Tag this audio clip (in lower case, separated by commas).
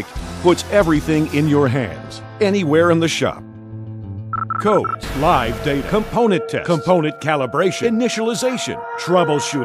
speech, music